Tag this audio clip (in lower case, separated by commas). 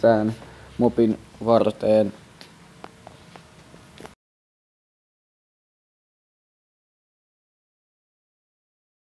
inside a small room, speech, silence